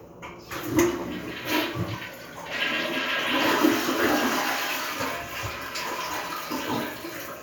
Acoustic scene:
restroom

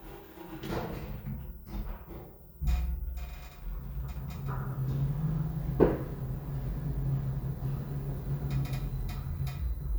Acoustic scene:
elevator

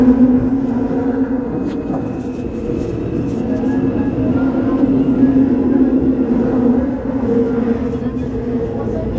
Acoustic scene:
subway train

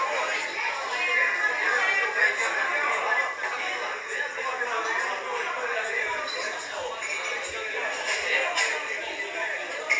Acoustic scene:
crowded indoor space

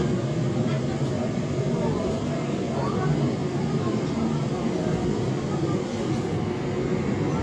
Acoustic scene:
subway train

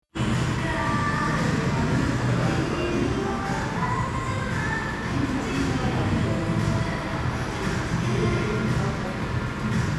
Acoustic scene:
cafe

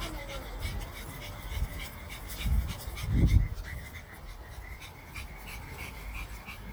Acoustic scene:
residential area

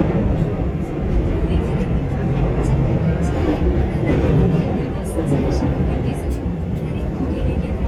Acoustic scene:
subway train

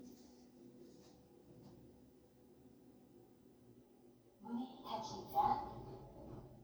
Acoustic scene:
elevator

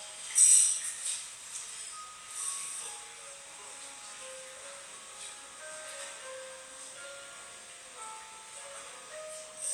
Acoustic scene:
cafe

